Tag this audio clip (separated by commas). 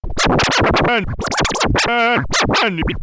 Scratching (performance technique), Musical instrument, Music